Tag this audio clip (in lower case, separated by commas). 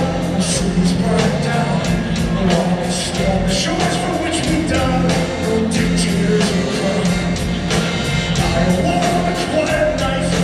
musical instrument, singing, music